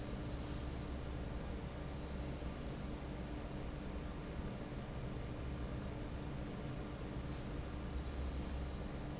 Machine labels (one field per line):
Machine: fan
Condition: normal